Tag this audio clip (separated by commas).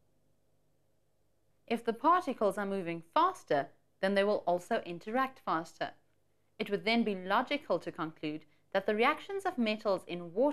Speech